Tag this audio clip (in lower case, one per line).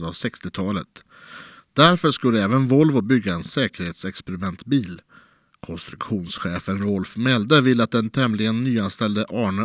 speech